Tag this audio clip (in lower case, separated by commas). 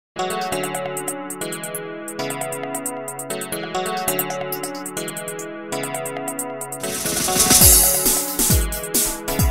synthesizer